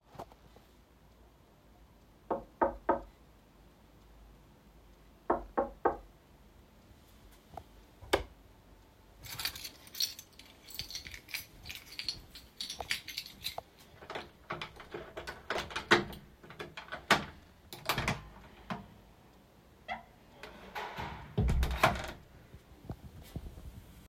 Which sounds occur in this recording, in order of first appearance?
light switch, keys, footsteps, door